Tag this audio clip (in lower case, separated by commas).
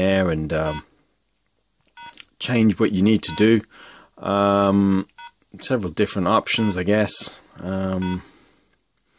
inside a small room, speech